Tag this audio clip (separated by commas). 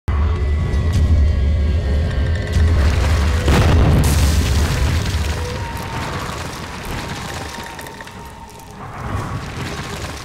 Boom, Music